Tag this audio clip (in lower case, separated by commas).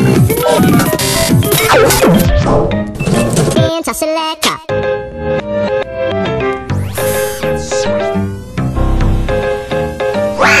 music, speech, theme music